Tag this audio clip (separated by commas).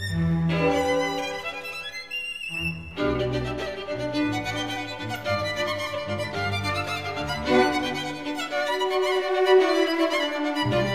fiddle, Music, Musical instrument